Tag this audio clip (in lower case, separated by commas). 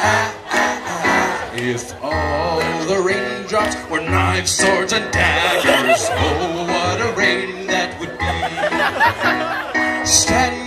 music